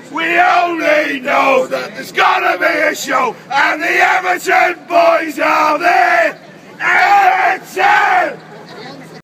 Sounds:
mantra

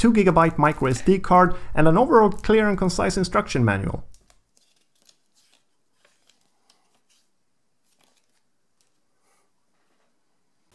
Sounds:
speech
inside a small room

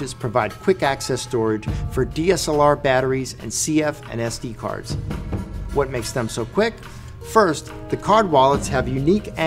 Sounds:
speech
music

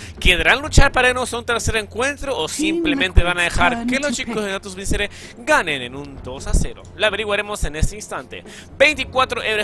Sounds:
speech

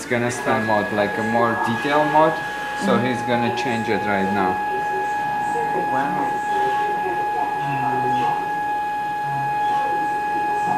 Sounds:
speech

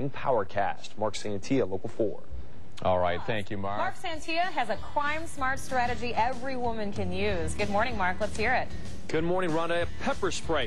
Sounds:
speech
music

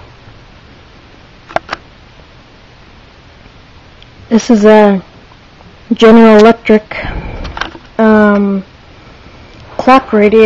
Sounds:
speech

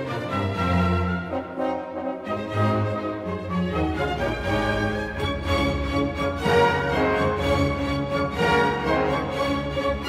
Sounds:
music

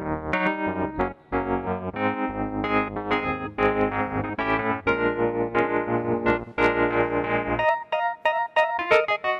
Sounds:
musical instrument
piano
electric piano
keyboard (musical)
music

